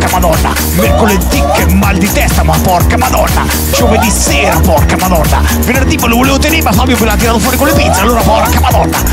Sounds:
Music

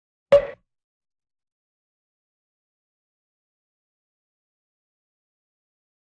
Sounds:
Sound effect

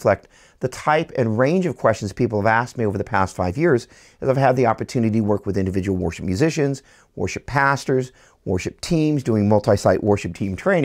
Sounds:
Speech

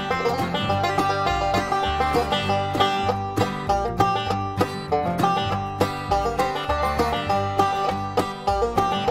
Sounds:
Music

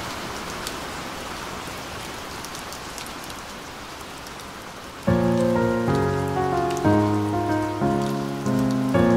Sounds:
raining

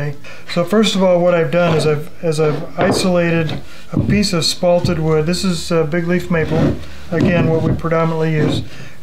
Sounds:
Speech

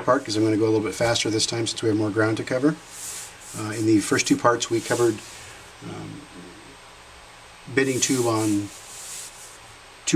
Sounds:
Speech

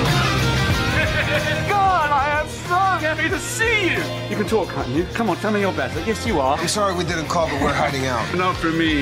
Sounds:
Speech, Music

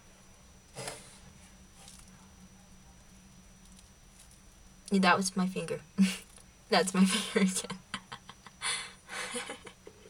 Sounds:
Speech

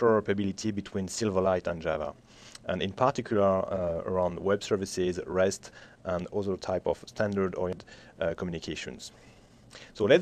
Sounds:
Speech

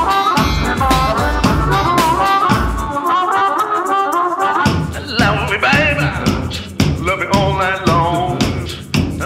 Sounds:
Music

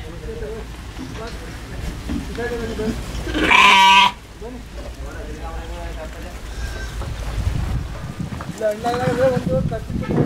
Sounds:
Speech, Bleat, Sheep

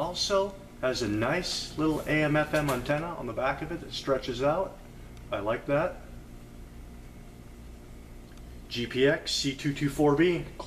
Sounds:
Speech

